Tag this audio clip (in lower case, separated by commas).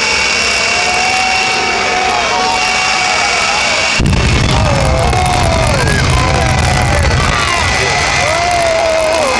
vehicle, truck